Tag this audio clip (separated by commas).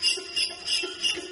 Mechanisms